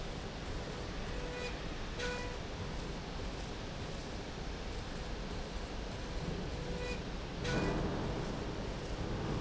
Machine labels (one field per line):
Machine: slide rail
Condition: normal